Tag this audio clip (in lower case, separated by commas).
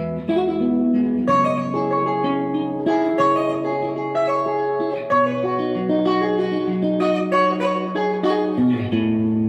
electric guitar, guitar, plucked string instrument, musical instrument, music